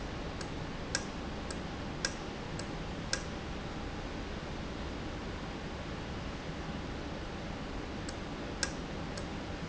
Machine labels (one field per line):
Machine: valve